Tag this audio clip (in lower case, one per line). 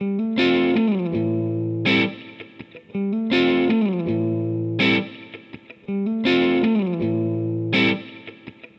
musical instrument
music
plucked string instrument
guitar